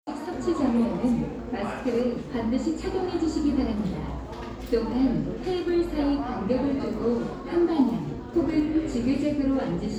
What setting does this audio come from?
cafe